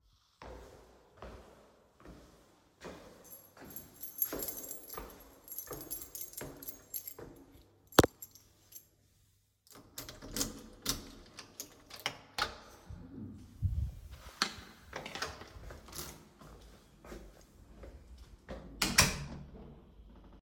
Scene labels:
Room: hallway; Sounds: footsteps, keys, door (more than once)

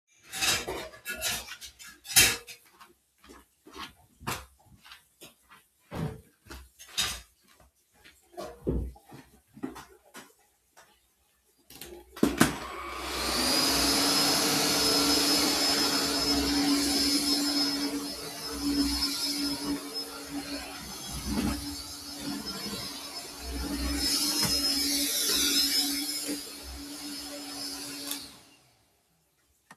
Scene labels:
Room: kitchen; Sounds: cutlery and dishes, footsteps, vacuum cleaner

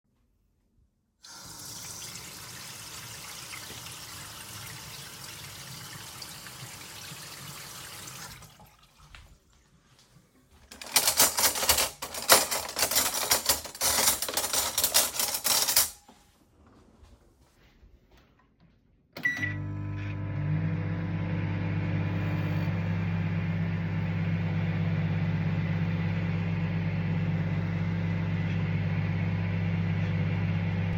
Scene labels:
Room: kitchen; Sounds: running water, cutlery and dishes, microwave

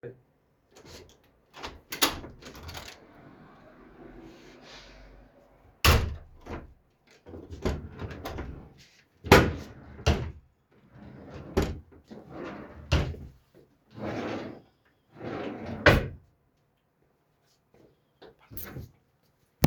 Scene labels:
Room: kitchen; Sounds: wardrobe or drawer (more than once)

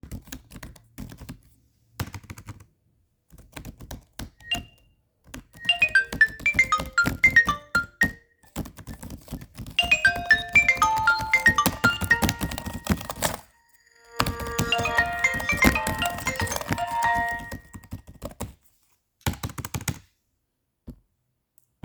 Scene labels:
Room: living room; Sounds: keyboard typing, phone ringing

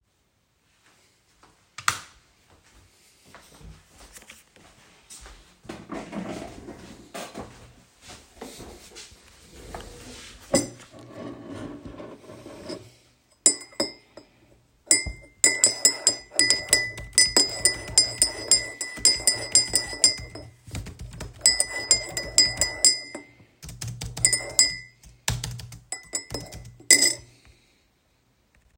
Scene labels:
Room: bedroom; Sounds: light switch, footsteps, cutlery and dishes, keyboard typing

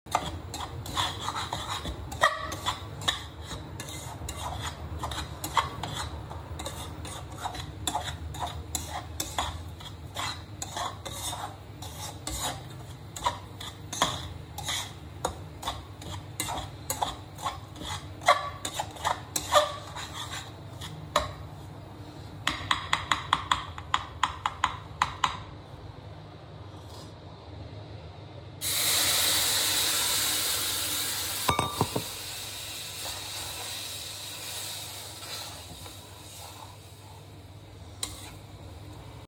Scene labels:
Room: kitchen; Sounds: cutlery and dishes

